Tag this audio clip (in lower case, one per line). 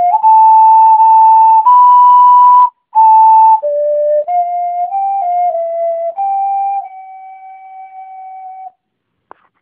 music